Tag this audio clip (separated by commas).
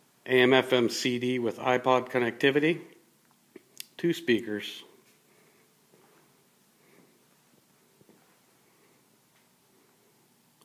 Speech